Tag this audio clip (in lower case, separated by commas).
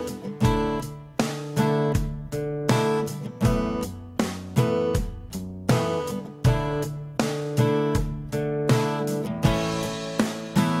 electric guitar, strum, guitar, plucked string instrument, music, musical instrument